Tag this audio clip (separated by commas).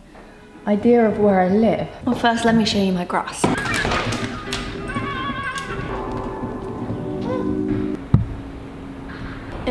Music, Speech